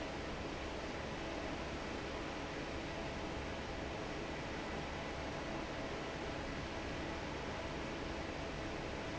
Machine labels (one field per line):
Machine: fan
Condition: normal